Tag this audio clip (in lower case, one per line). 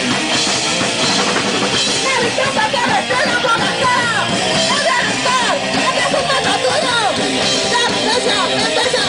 music